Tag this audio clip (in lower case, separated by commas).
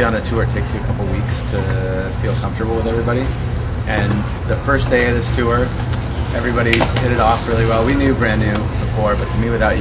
speech